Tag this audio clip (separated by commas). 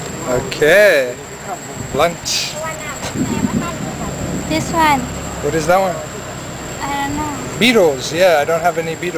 airscrew, Speech